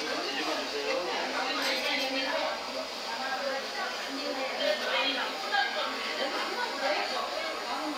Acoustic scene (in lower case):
restaurant